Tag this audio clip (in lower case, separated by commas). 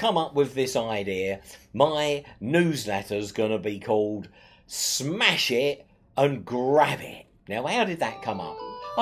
speech